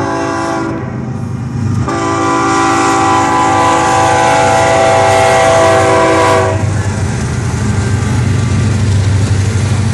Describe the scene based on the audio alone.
A train horn blowing as it moves on the tracks